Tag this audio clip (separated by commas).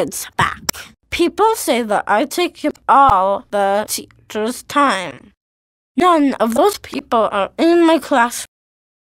Speech